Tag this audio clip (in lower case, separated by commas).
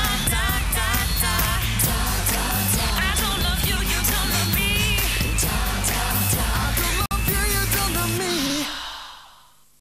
music